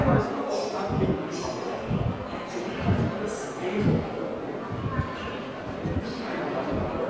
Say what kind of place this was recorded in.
subway station